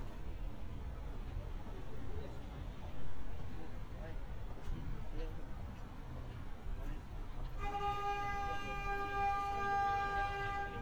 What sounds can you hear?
unidentified alert signal, person or small group talking